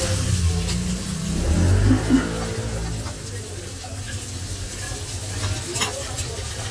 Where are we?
in a restaurant